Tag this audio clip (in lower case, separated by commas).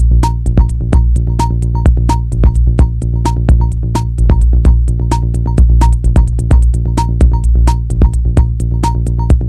music